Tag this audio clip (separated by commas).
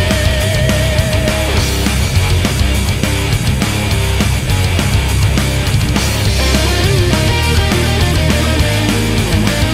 Heavy metal, Exciting music, Rock and roll, Grunge, Music, Progressive rock